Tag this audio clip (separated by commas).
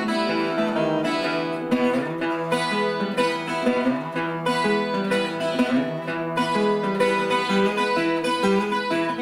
Guitar, Music, Blues